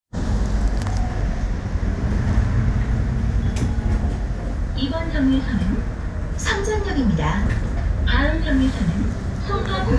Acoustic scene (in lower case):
bus